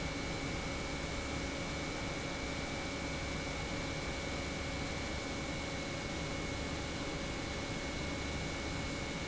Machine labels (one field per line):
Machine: pump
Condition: normal